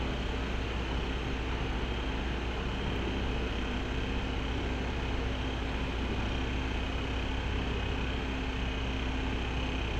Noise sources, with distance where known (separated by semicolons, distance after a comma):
large-sounding engine, near